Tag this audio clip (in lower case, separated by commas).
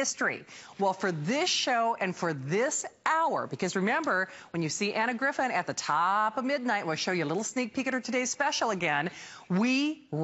speech